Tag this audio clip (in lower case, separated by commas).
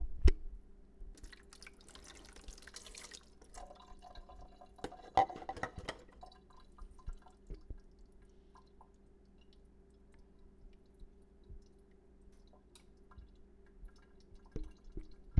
domestic sounds, sink (filling or washing)